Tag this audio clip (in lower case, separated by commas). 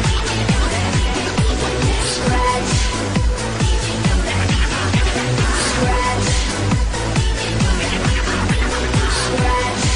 dance music, music